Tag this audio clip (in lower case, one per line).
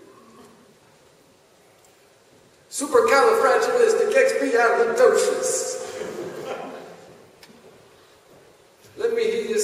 speech